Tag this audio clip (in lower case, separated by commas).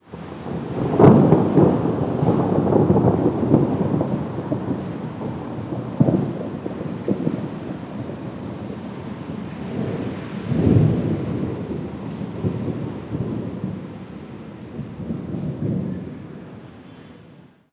thunder, thunderstorm